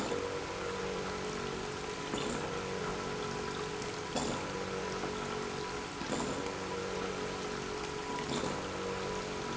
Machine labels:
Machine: pump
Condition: abnormal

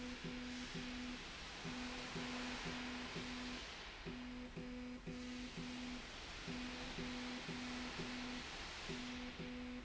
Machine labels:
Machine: slide rail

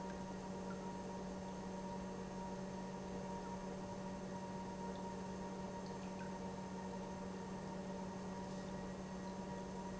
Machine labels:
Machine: pump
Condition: normal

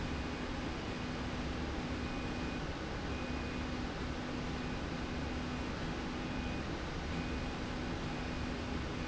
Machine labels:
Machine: slide rail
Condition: normal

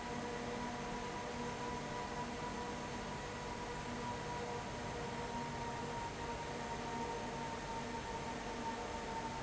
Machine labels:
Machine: fan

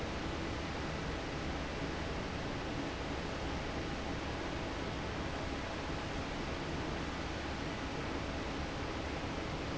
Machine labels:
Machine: fan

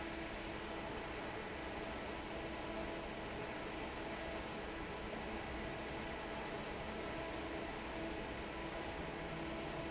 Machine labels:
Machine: fan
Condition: normal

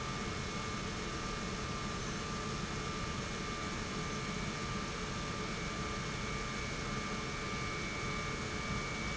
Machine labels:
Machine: pump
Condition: normal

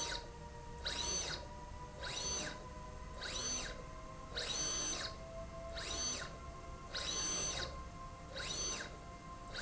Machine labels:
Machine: slide rail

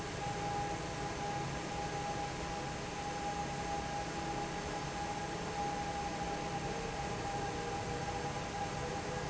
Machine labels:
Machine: fan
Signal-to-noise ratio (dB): -6 dB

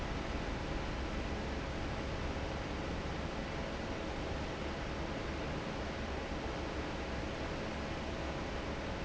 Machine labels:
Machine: fan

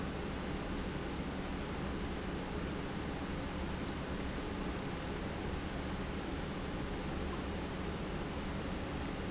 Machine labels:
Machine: pump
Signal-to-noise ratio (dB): -6 dB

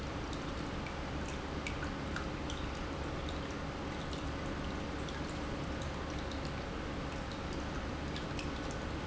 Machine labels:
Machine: pump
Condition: normal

